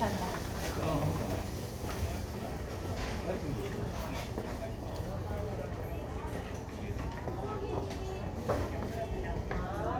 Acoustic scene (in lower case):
crowded indoor space